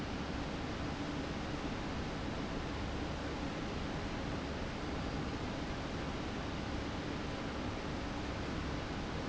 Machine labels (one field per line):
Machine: fan